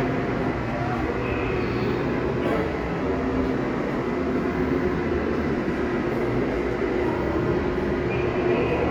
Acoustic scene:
subway station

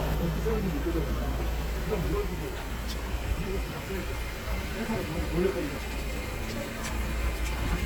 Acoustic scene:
street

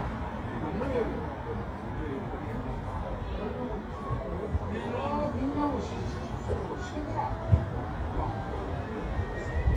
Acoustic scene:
residential area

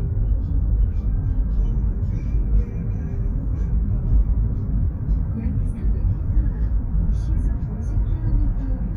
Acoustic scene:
car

